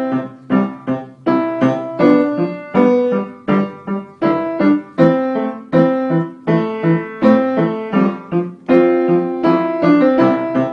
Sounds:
Music, Piano, Keyboard (musical)

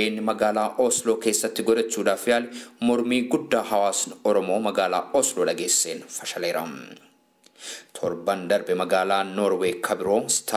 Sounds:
Speech

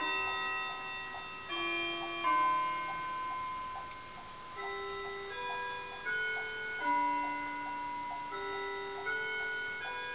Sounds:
Tick-tock

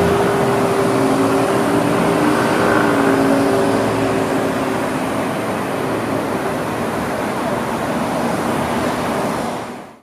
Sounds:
Car, Vehicle

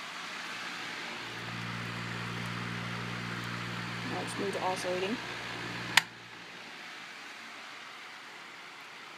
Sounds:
Mechanical fan, inside a small room, Speech

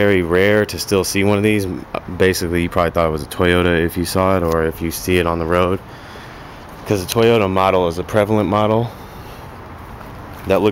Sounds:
Speech

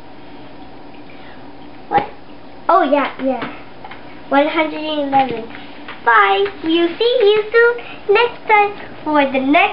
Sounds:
kid speaking, Speech, inside a small room

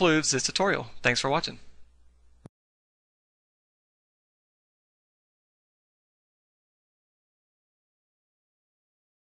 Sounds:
Speech

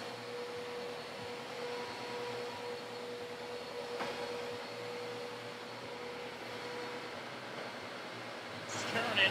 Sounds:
Speech

